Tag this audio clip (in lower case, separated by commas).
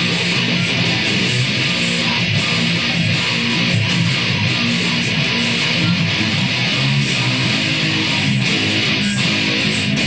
plucked string instrument, electric guitar, guitar, musical instrument, music